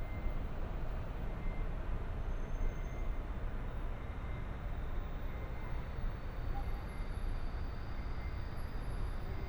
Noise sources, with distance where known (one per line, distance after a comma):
reverse beeper, far